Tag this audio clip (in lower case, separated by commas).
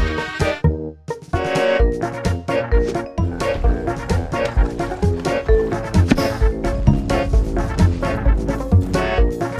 music